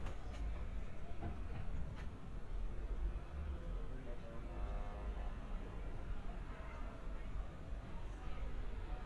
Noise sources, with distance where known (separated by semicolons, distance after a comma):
music from an unclear source